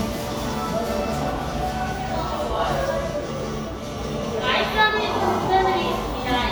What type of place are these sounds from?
cafe